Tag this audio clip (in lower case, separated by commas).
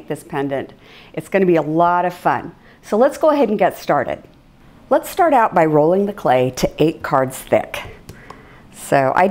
speech